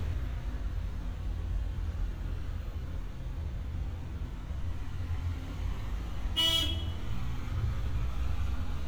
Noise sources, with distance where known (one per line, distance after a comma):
car horn, near